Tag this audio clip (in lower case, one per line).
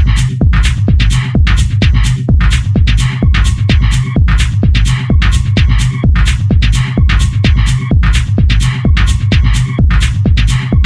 music